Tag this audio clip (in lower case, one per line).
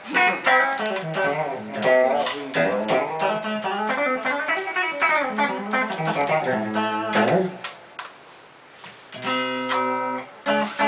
music